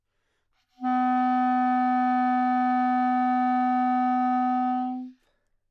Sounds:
Musical instrument, Music, Wind instrument

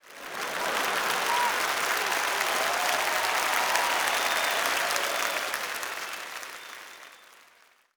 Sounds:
Human group actions, Applause

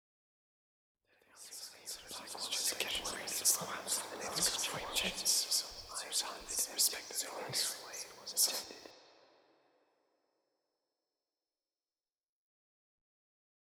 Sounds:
Whispering, Human voice

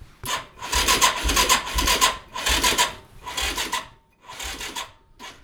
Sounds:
Engine

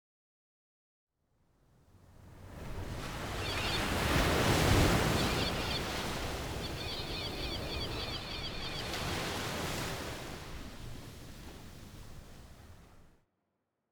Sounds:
Ocean, Animal, surf, Bird, Wild animals, Gull, Water

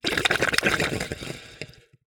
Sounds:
Gurgling, Water

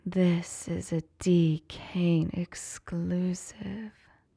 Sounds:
Human voice

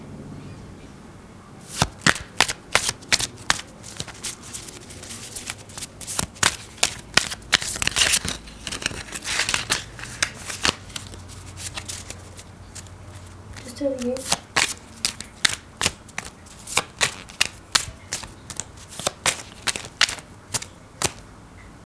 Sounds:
home sounds

